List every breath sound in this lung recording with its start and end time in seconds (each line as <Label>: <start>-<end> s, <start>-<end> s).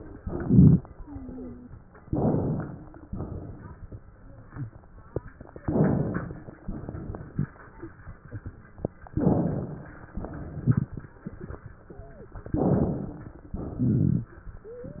Inhalation: 0.15-0.82 s, 2.07-3.04 s, 5.64-6.55 s, 9.11-10.11 s, 12.50-13.44 s
Exhalation: 3.06-4.02 s, 6.62-7.53 s, 10.13-11.14 s, 13.55-14.36 s
Wheeze: 0.99-1.65 s, 11.88-12.31 s
Rhonchi: 0.15-0.82 s, 2.05-2.64 s, 5.67-6.24 s, 9.16-9.73 s, 13.81-14.38 s